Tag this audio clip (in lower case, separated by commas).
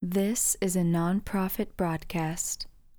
female speech, human voice, speech